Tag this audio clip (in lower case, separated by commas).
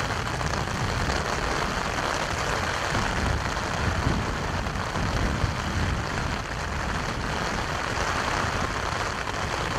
outside, rural or natural